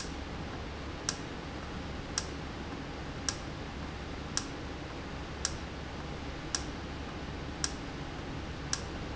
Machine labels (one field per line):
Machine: valve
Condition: normal